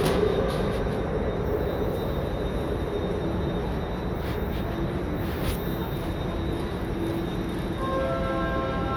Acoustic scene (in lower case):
subway station